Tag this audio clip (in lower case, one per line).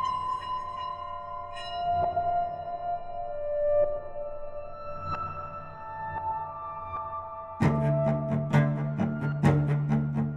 music